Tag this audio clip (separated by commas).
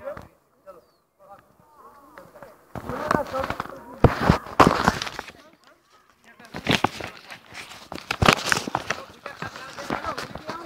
Speech